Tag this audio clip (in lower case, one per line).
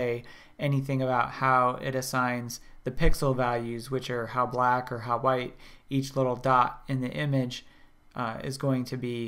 speech